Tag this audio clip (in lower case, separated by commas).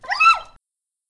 animal, pets, dog